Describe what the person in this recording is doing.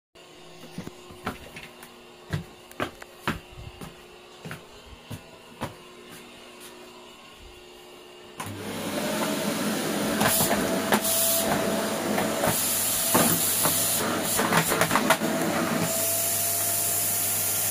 I walked into the kitchen toward the microwave. After interacting with the microwave, I started using a vacuum cleaner. I moved around the room while vacuuming the floor.